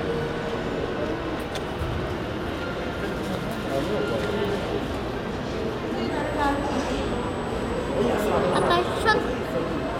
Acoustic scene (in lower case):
crowded indoor space